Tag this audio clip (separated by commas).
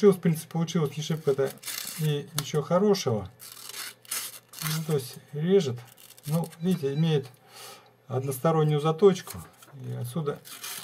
Speech, inside a small room